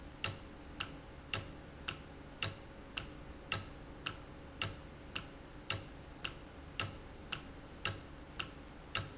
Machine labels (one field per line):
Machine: valve